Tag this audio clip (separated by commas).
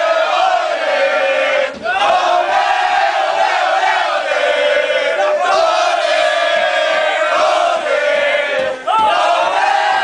inside a small room, Singing